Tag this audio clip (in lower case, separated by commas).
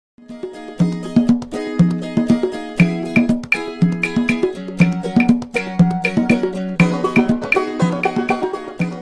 speech, music, wood block